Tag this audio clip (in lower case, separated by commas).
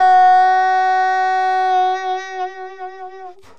woodwind instrument, musical instrument, music